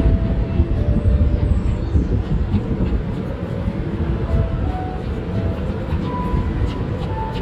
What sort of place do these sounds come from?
park